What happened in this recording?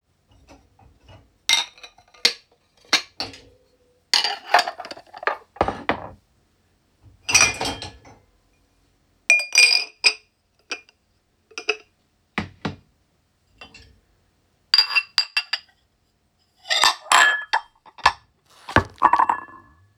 I unloaded dishes from my dishwasher. You can hear cutlery sounds when they clash together.